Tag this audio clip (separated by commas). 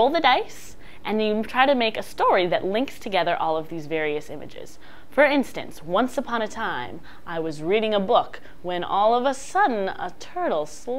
woman speaking